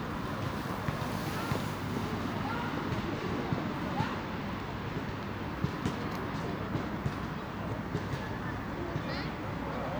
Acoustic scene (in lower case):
residential area